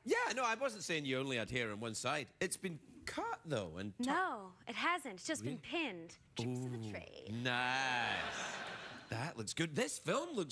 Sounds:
Speech

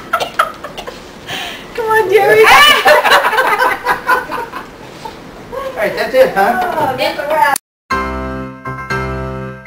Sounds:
Chuckle, Speech, Music

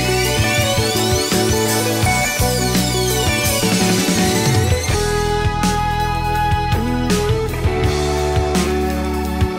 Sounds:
Music

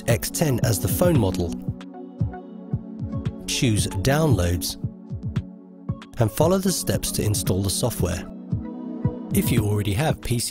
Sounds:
Music, Speech

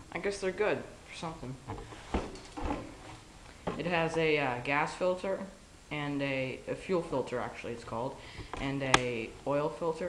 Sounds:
Speech

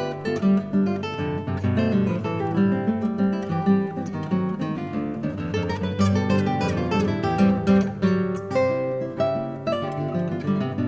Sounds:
Plucked string instrument, Strum, Music, Musical instrument, Guitar

